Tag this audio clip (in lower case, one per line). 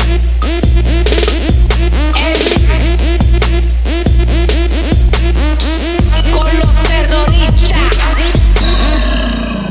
music